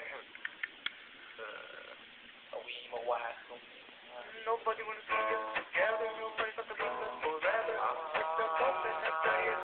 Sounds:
music
speech
male singing

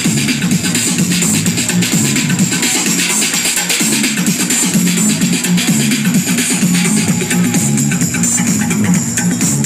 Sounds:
techno
house music
rhythm and blues
music
electronic dance music
electronica
electronic music
dubstep
trance music

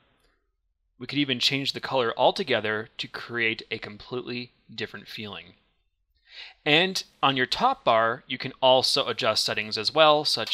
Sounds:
speech

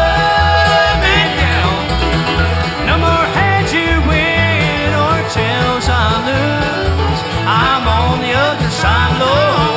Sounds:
music

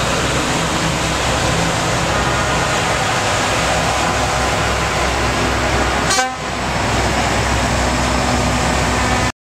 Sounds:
truck
vehicle

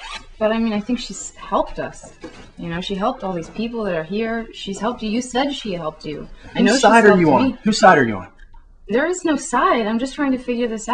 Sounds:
conversation

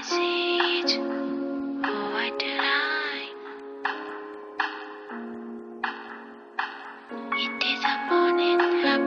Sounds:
music

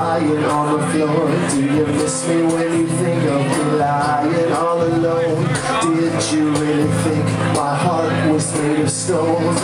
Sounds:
speech
music

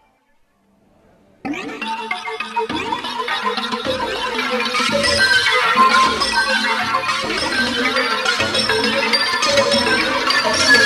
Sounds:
tick-tock
music

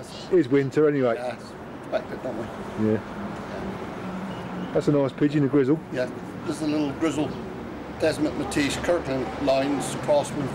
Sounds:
speech

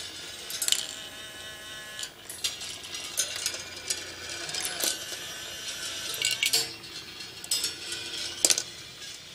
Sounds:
inside a small room

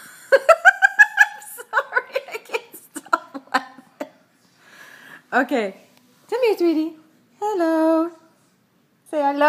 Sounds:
speech

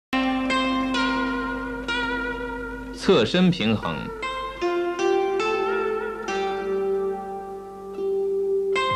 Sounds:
music
speech

